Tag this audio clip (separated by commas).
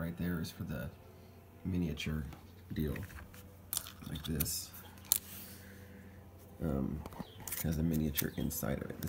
Speech